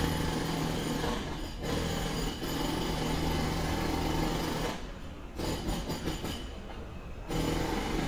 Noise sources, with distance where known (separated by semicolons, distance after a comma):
jackhammer, near